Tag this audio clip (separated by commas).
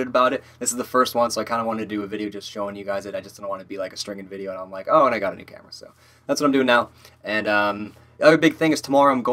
Speech